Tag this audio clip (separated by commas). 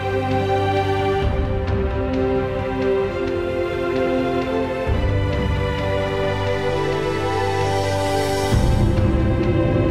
Music